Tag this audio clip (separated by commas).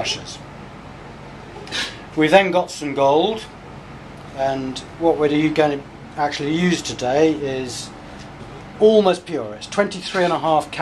Speech